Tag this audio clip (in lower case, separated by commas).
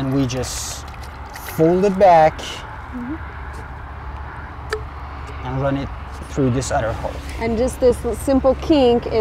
speech, drip